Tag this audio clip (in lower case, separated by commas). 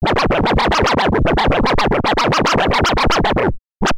music, musical instrument, scratching (performance technique)